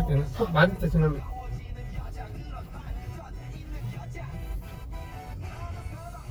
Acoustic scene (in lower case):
car